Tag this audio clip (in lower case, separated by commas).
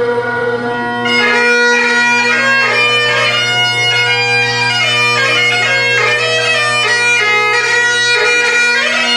music, bagpipes